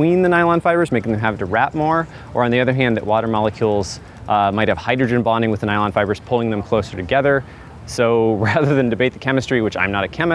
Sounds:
speech

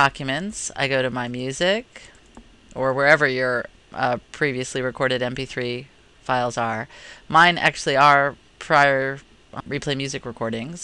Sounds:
speech

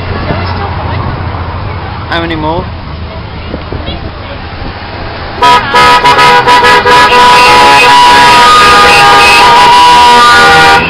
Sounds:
vehicle, car horn, speech

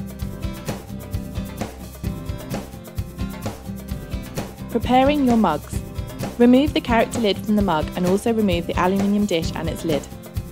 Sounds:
music, speech

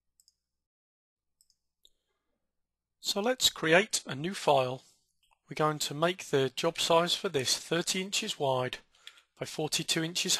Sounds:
speech

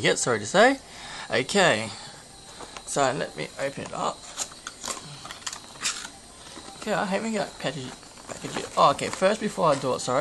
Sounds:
speech

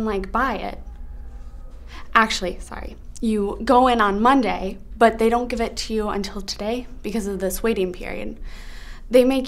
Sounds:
speech

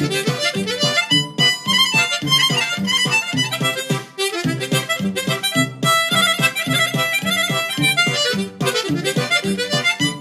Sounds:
music, musical instrument, harmonica

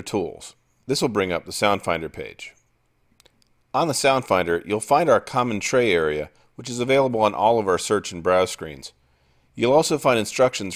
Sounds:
speech

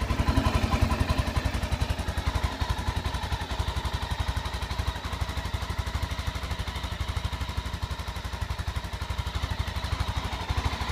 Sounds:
vehicle, heavy engine (low frequency)

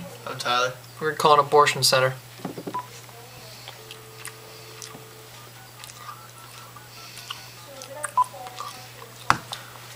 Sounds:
inside a small room, speech, telephone dialing

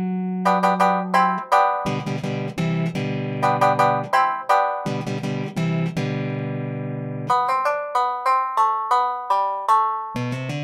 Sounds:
musical instrument, plucked string instrument, music, country, guitar

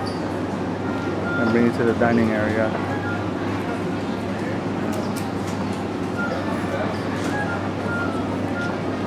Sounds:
speech

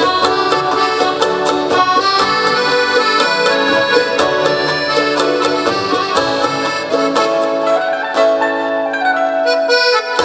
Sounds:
playing accordion

